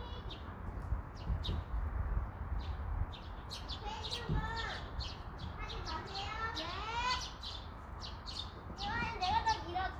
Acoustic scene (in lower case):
park